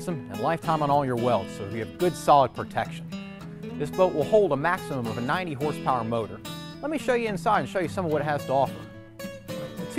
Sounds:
Music, Speech

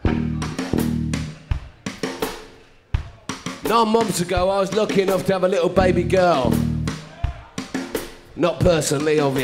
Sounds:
Music, Speech

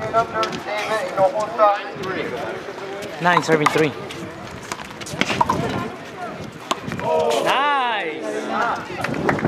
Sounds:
Speech

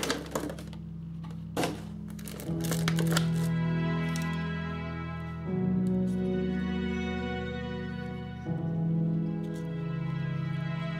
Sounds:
Music

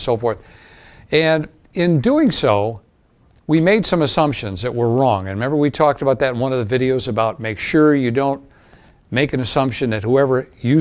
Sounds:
Speech

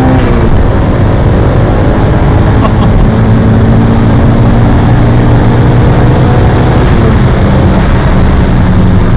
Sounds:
Vehicle, Car, Medium engine (mid frequency), vroom

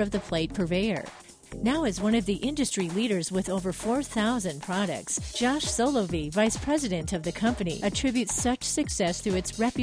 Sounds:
Music, Speech

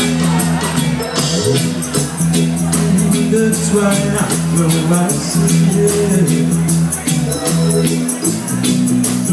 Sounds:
Speech, Music

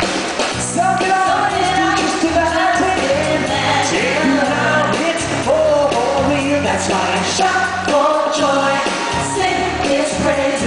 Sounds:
Music

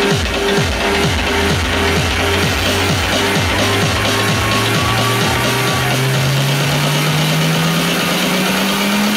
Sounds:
Music, inside a public space, Electronic music

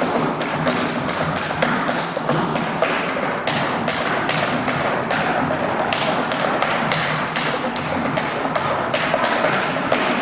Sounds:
tap dancing

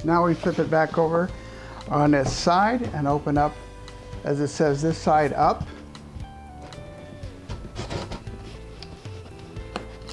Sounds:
Speech, Music

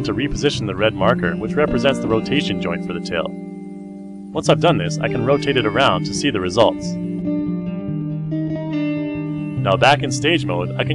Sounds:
Speech, Plucked string instrument, Music

